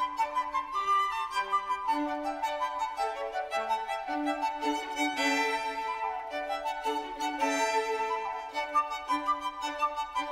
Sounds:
Violin, Music

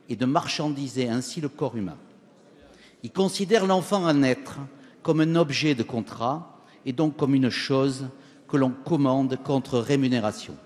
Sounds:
Speech

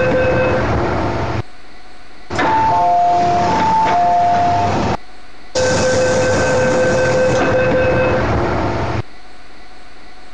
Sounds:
Vehicle, Sliding door

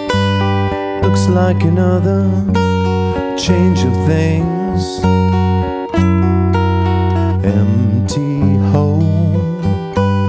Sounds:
Musical instrument, Acoustic guitar, Music, Strum, Plucked string instrument, Guitar

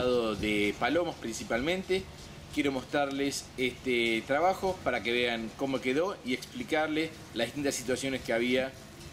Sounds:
Speech

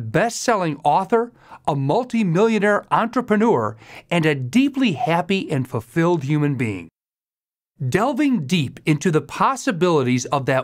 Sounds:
Speech, Narration

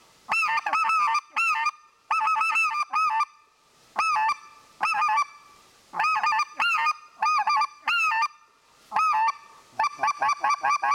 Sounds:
Honk

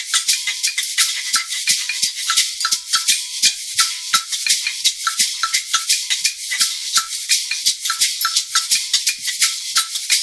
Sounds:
playing guiro

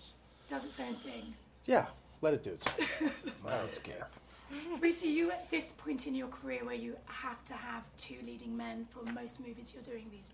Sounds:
Speech

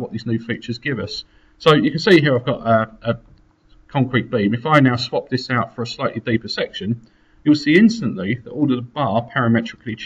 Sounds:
Speech

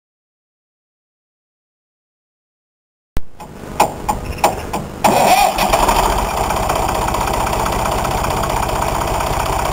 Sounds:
Vehicle

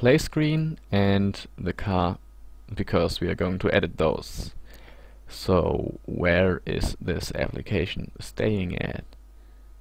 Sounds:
Speech

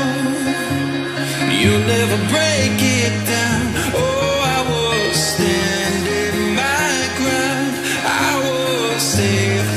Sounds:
Pop music, Music

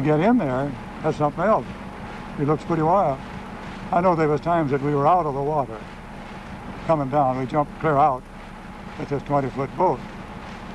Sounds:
Speech

